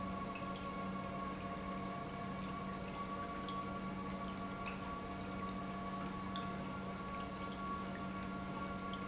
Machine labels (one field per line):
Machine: pump